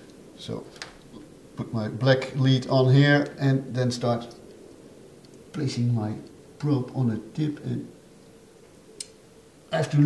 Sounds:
Speech

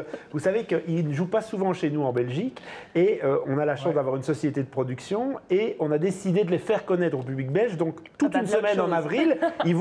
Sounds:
Speech

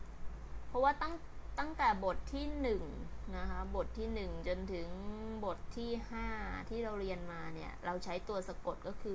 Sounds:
Speech

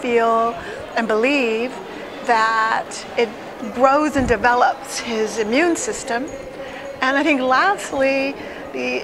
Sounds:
Female speech

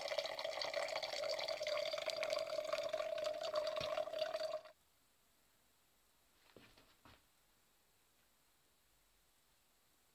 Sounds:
Water

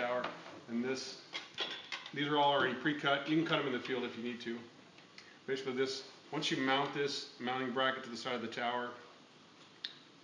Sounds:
Speech

